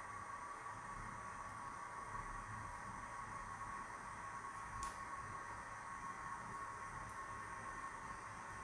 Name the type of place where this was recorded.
restroom